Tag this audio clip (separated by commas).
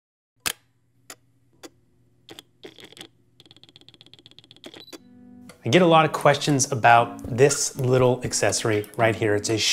Music, Speech